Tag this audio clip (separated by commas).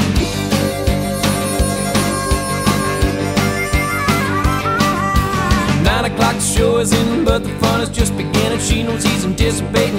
Music